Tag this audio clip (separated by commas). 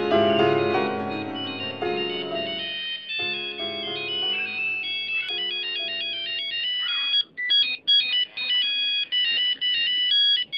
inside a small room